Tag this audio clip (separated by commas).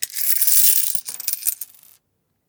Coin (dropping), Domestic sounds